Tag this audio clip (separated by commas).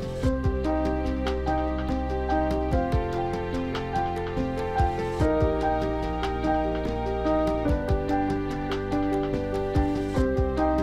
Music